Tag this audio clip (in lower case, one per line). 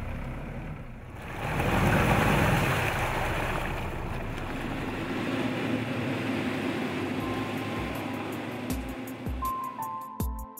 car
vehicle